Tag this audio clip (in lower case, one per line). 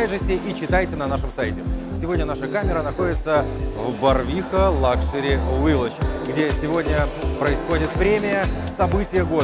speech
music